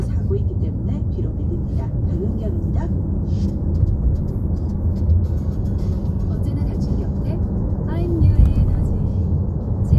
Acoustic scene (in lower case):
car